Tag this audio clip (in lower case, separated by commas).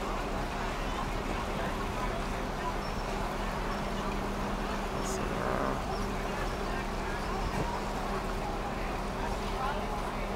boat, speech, vehicle